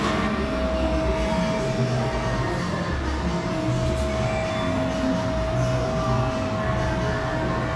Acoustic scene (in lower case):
cafe